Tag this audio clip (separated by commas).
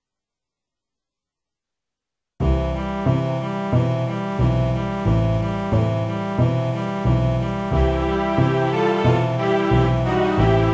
Music